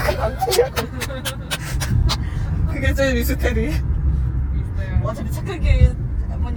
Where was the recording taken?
in a car